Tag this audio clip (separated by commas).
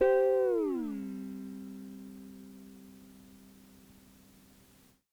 Guitar, Music, Plucked string instrument, Musical instrument